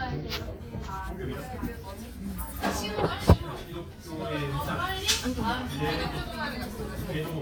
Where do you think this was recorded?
in a crowded indoor space